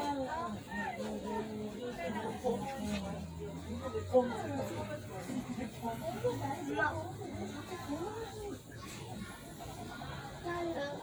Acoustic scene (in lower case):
residential area